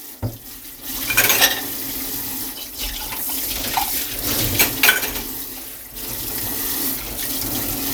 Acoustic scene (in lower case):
kitchen